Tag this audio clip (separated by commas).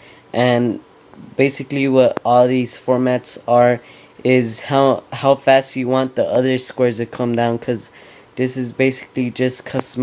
Speech